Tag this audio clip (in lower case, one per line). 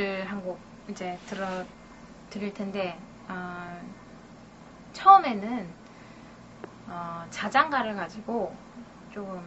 speech